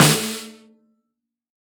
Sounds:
musical instrument, drum, music, percussion, snare drum

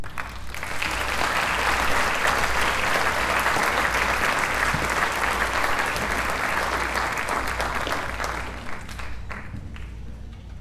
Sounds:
applause, human group actions

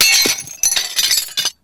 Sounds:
glass, shatter

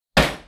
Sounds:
hammer, tools

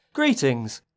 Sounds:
male speech, human voice, speech

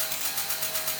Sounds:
mechanisms

